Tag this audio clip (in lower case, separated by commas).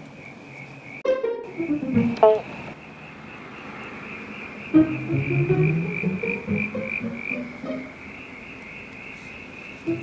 frog croaking